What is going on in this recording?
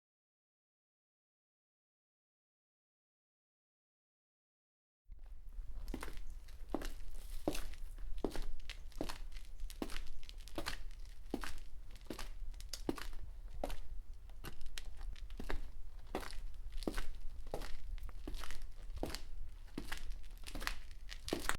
Person enters room and switches light.